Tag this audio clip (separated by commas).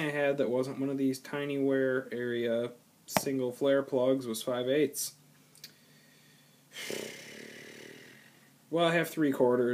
Speech